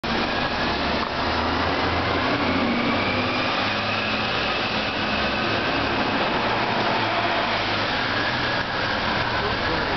Bus driving off on road